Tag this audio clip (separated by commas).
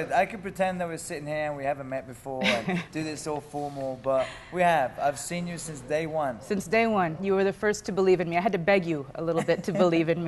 Speech